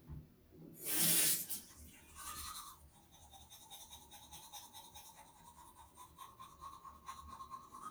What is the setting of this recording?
restroom